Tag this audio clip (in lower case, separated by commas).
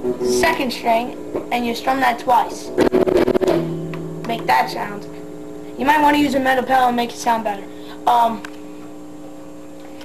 speech, music